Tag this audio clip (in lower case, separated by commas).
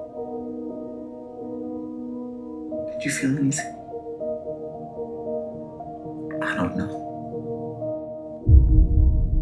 speech, music